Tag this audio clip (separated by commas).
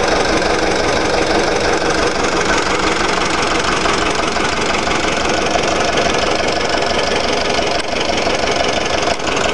Engine, Vehicle, Heavy engine (low frequency), Idling